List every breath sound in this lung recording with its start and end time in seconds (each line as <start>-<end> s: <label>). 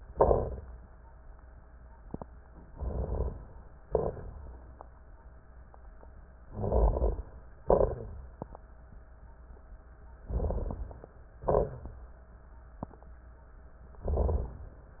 0.12-0.65 s: exhalation
2.66-3.47 s: inhalation
3.85-4.93 s: exhalation
3.85-4.93 s: crackles
6.48-7.42 s: inhalation
6.48-7.42 s: crackles
7.66-8.52 s: exhalation
7.66-8.52 s: crackles
10.21-11.20 s: inhalation
10.21-11.20 s: crackles
11.43-12.17 s: exhalation